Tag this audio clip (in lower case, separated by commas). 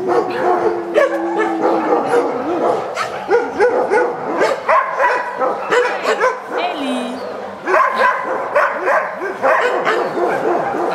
pets, animal, speech, dog, bark, canids